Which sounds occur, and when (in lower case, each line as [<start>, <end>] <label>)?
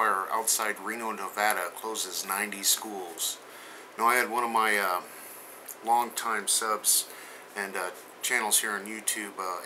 [0.00, 3.37] male speech
[0.00, 9.65] background noise
[3.43, 3.93] breathing
[3.96, 5.08] male speech
[5.67, 7.04] male speech
[7.05, 7.52] breathing
[7.50, 8.02] male speech
[8.23, 9.65] male speech